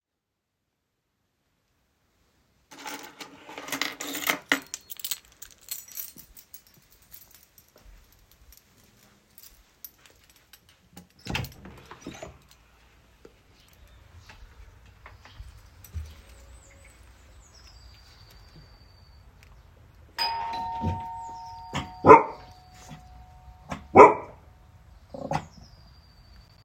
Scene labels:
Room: hallway; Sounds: keys, door, bell ringing

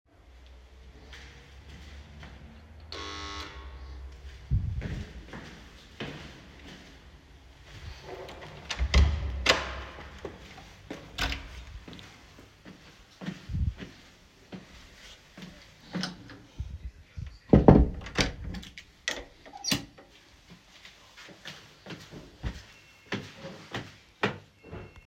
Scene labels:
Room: hallway; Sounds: bell ringing, footsteps, door

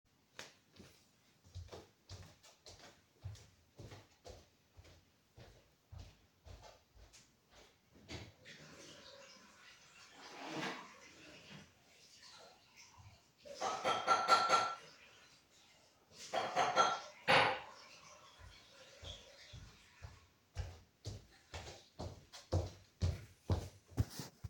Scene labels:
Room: kitchen, living room; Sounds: footsteps, running water, wardrobe or drawer, cutlery and dishes

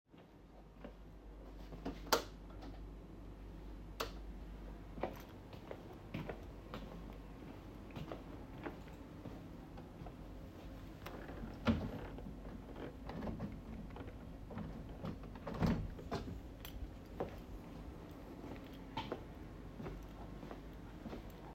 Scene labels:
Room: office; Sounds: light switch, footsteps, wardrobe or drawer (more than once)

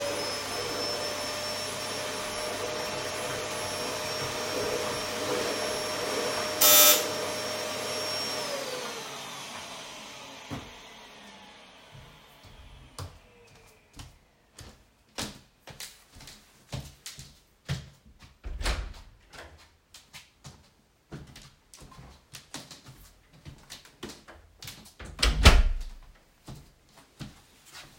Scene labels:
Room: living room, hallway; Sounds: vacuum cleaner, bell ringing, footsteps, door (more than once)

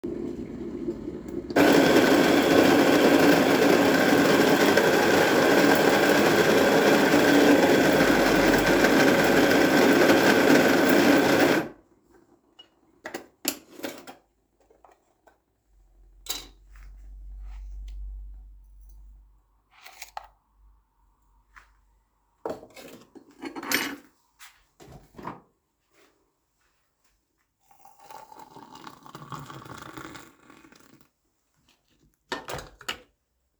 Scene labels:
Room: kitchen; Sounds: coffee machine, cutlery and dishes

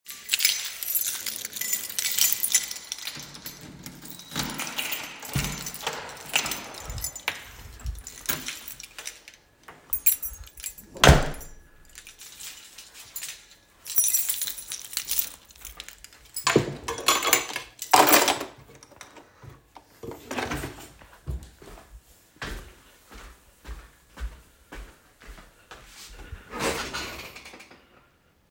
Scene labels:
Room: kitchen; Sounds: keys, door (more than once), wardrobe or drawer (more than once), footsteps

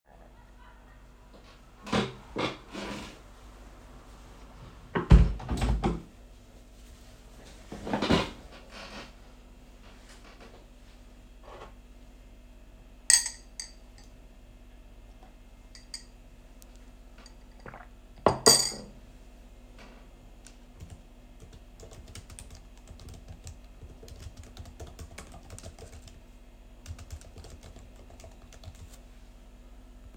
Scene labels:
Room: bedroom; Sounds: window, cutlery and dishes, keyboard typing

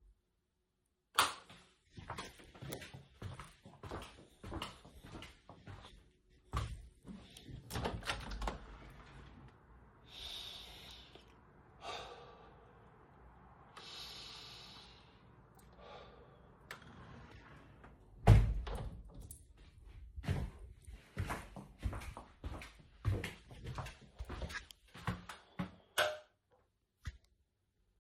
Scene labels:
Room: living room; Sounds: light switch, footsteps, window (more than once)

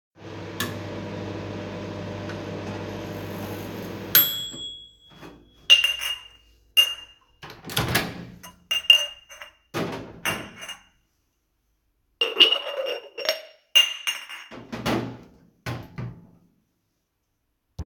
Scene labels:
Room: kitchen; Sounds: microwave, cutlery and dishes

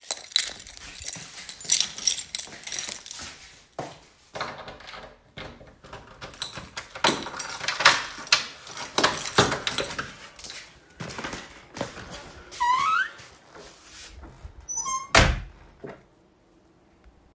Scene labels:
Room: bedroom; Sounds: keys, footsteps, door (more than once)

